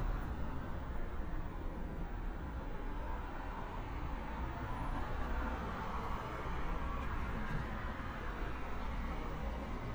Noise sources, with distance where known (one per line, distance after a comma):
engine of unclear size